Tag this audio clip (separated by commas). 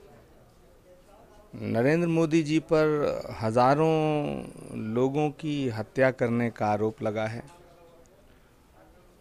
Speech